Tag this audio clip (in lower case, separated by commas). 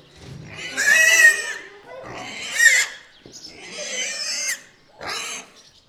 livestock, animal